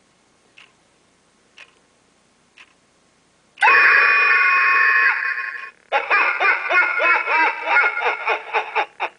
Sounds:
Tick-tock, Tick

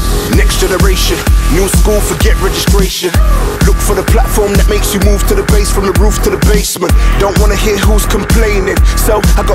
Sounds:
Music

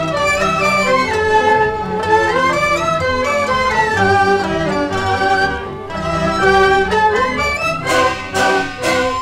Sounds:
Music

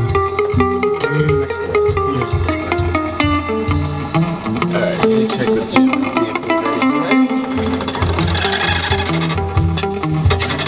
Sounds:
Music, Speech

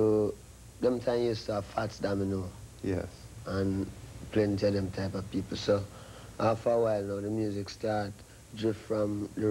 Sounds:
Speech

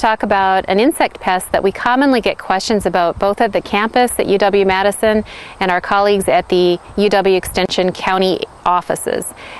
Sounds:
Speech

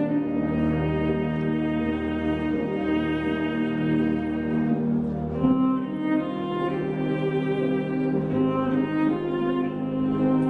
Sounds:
Bowed string instrument, Cello, playing cello

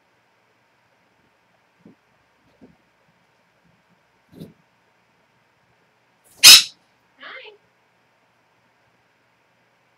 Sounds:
Speech

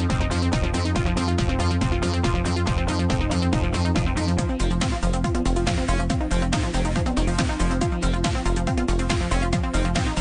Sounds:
Music

